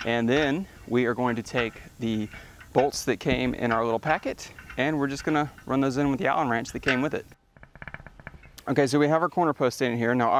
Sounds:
Speech

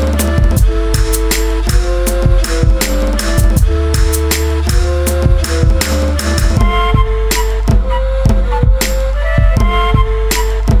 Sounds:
Exciting music, Music

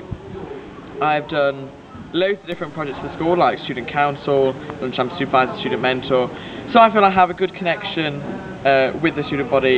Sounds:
monologue, Speech

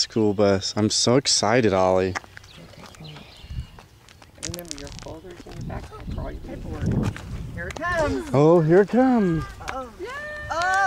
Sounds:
Speech

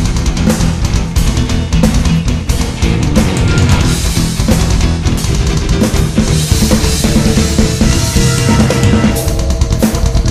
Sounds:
Musical instrument, Music, Drum kit, Drum

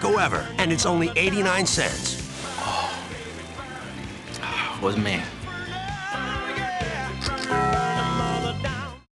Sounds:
Speech, Music

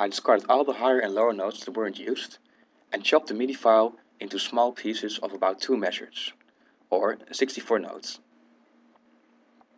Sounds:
Speech

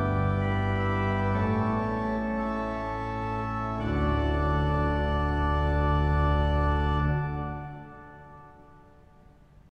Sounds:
Music

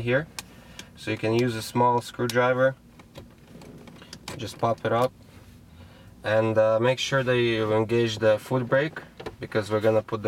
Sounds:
Speech

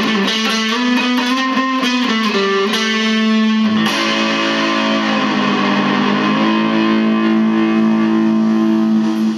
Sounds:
Musical instrument, Music, Electric guitar, Plucked string instrument, Strum, Guitar

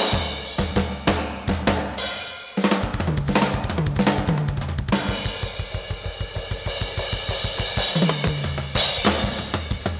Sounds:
Music, Percussion

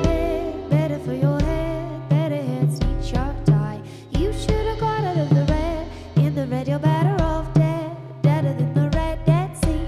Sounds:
Music

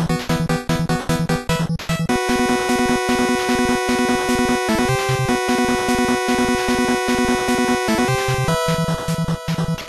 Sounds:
Theme music

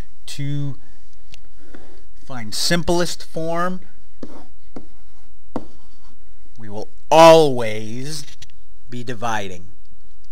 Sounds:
Speech

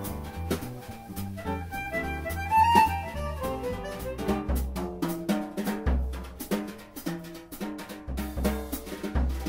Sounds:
Harmonica, Wind instrument

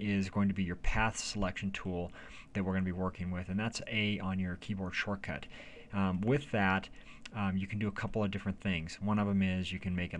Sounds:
Speech

